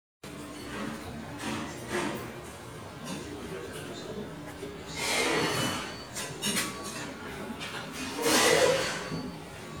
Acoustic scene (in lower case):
restaurant